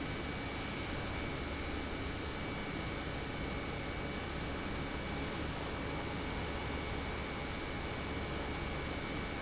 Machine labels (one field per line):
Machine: pump